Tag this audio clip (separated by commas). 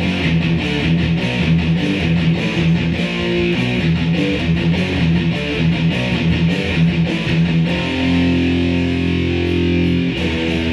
Musical instrument, Plucked string instrument, Guitar, Bass guitar, Music, playing bass guitar, Strum, Acoustic guitar